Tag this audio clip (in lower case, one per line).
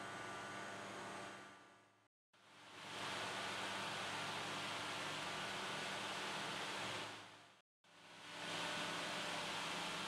spray